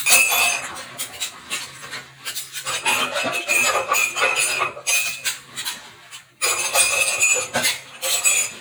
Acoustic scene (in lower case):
kitchen